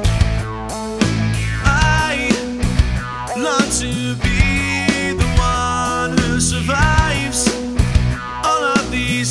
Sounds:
Music

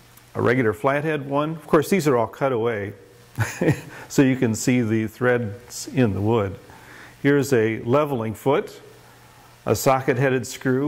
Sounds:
Speech

